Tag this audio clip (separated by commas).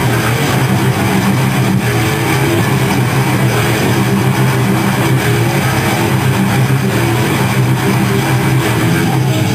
Music